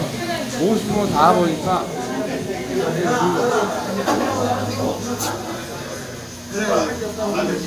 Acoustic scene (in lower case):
crowded indoor space